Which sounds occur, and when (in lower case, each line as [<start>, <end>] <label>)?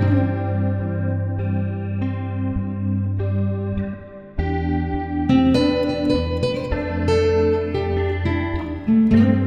[0.01, 9.45] music